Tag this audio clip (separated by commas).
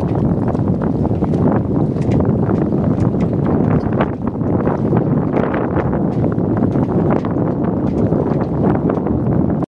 sailing, sailing ship